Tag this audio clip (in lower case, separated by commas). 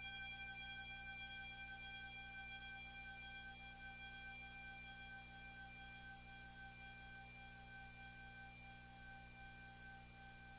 music